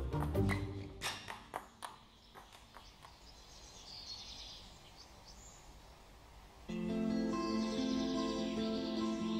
Several birds chirping, then soft music starts